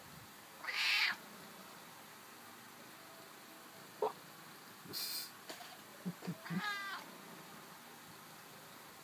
A cat is meowing followed by a man making a slight snicker